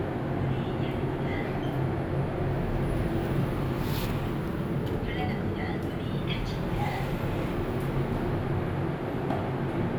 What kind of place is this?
elevator